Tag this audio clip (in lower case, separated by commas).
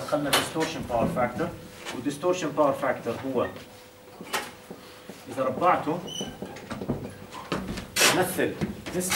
speech